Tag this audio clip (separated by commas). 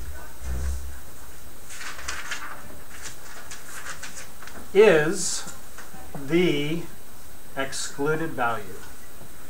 Speech, inside a small room